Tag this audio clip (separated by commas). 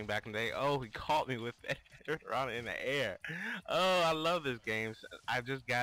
Speech